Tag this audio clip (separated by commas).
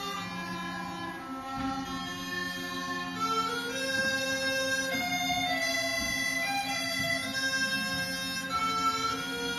Musical instrument, Music, Bagpipes